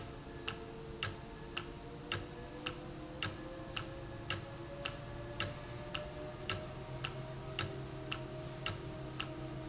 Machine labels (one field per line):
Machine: valve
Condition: normal